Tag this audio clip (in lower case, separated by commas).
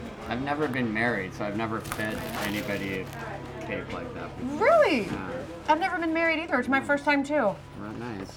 conversation, human voice, speech